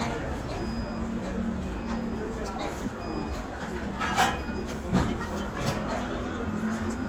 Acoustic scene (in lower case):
crowded indoor space